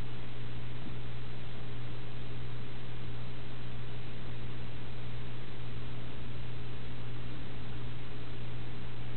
A cat hisses quietly